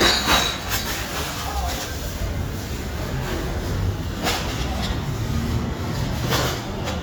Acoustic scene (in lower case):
residential area